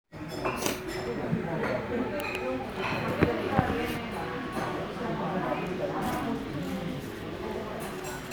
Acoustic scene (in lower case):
crowded indoor space